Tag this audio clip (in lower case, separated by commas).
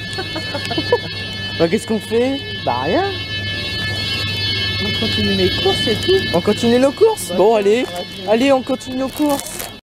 fire alarm, music, speech